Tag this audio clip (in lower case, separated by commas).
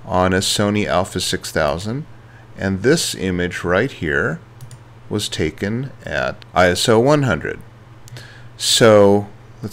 speech